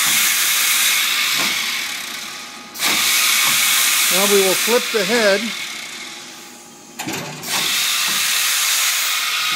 A drill starts and stops a few times with a man talking briefly in the middle